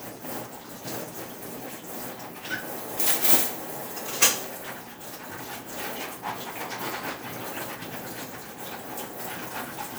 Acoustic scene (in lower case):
kitchen